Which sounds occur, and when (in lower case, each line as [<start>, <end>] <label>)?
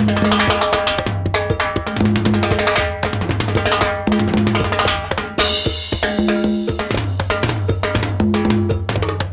[0.00, 9.32] music